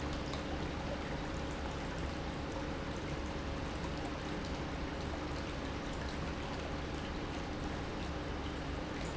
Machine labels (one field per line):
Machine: pump